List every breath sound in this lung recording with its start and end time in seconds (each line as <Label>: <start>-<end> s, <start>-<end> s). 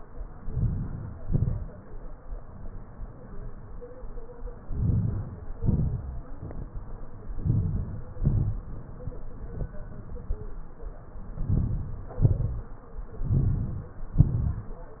Inhalation: 0.52-1.07 s, 4.76-5.41 s, 7.44-8.01 s, 11.49-12.04 s, 13.27-13.91 s
Exhalation: 1.24-1.74 s, 5.64-6.13 s, 8.22-8.63 s, 12.23-12.71 s, 14.22-14.77 s